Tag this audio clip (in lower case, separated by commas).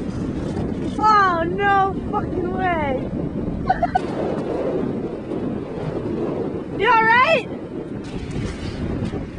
speech